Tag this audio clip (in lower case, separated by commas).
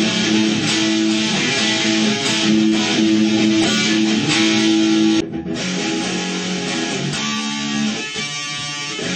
plucked string instrument, electric guitar, music, guitar, musical instrument, strum